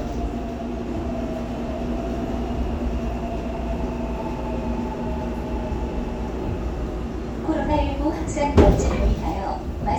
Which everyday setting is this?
subway train